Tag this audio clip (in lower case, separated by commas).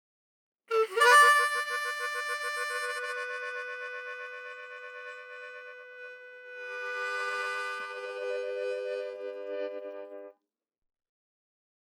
musical instrument, music, harmonica